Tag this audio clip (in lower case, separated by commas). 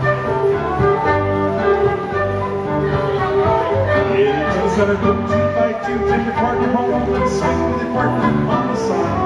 music